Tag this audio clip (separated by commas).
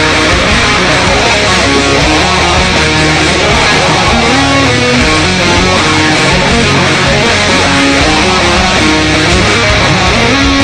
Strum, Musical instrument, Music, Electric guitar, Guitar, Plucked string instrument